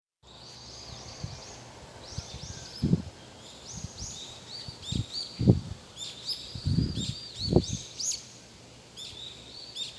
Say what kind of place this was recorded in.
park